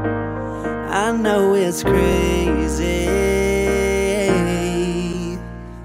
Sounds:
music

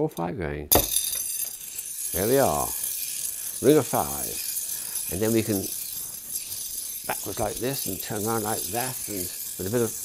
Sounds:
inside a small room
speech

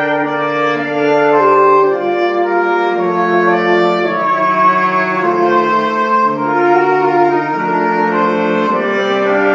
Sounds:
music

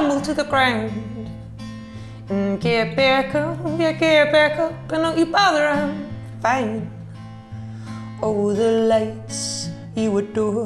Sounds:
music

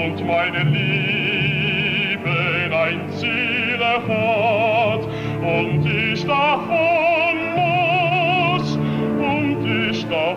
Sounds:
music
male singing

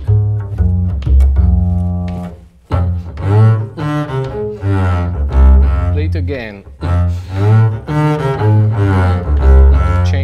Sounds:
playing double bass

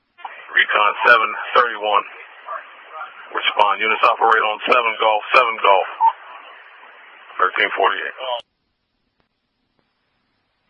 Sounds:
speech

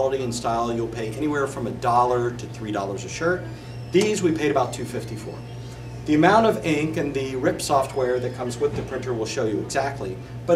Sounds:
speech

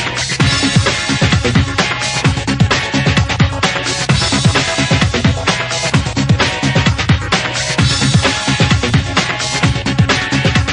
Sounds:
music

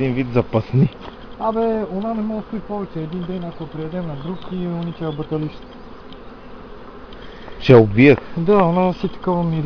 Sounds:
speech

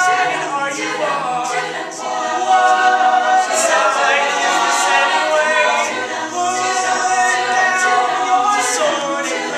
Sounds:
a capella
singing
choir

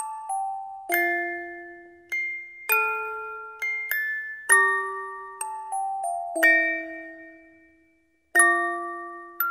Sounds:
chime

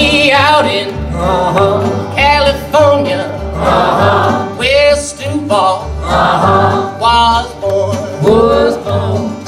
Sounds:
inside a large room or hall
singing
music

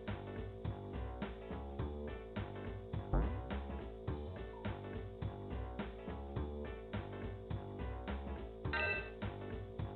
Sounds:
background music
video game music
funny music
soundtrack music
music

